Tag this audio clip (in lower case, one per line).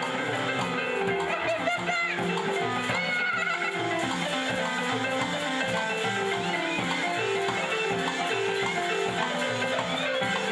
music
speech